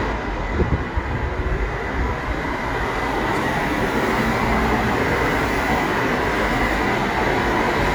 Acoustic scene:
street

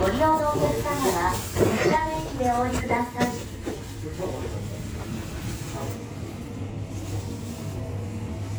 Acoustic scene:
subway station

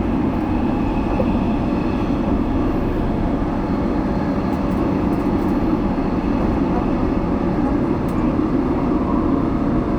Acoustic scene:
subway train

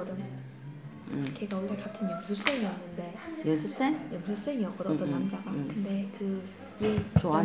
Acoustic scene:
crowded indoor space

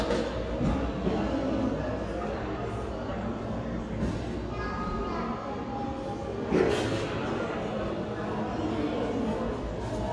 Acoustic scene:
cafe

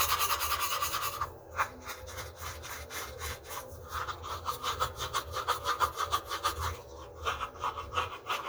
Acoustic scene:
restroom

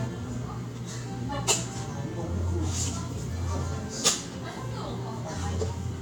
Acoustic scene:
cafe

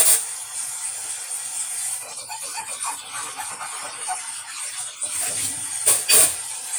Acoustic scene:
kitchen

